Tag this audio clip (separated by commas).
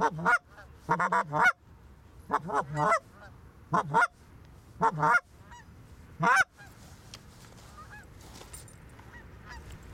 Honk, goose honking